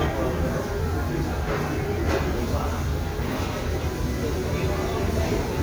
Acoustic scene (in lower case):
restaurant